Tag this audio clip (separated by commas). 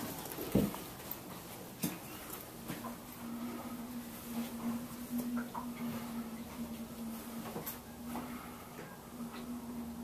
Water vehicle, Vehicle